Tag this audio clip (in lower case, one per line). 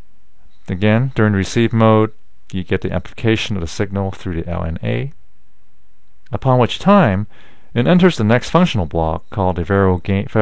speech synthesizer
speech